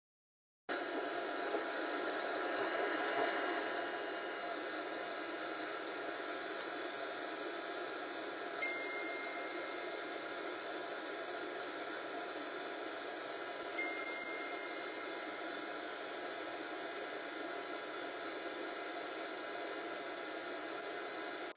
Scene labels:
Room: living room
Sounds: vacuum cleaner, phone ringing

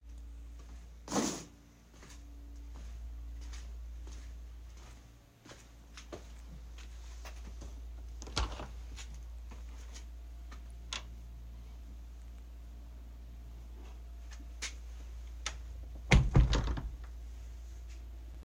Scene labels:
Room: hallway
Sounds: footsteps, door (more than once)

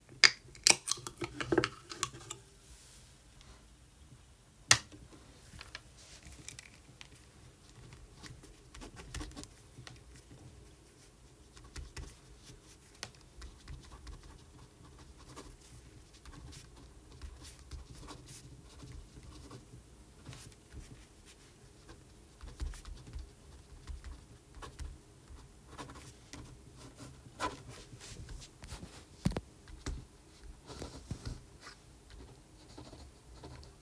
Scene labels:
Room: office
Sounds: light switch

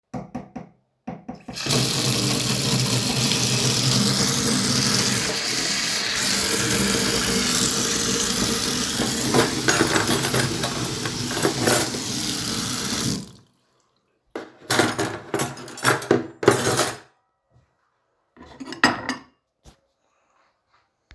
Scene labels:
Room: kitchen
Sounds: running water, cutlery and dishes

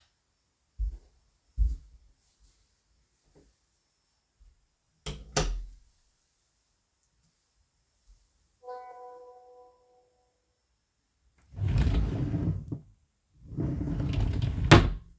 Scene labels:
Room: bedroom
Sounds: footsteps, door, phone ringing, wardrobe or drawer

